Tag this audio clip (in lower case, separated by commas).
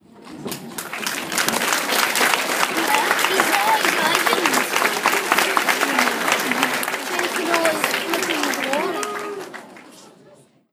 applause, human group actions